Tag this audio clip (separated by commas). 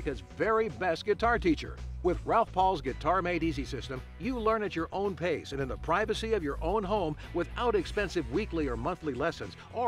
Musical instrument, Guitar, Music, Plucked string instrument, Speech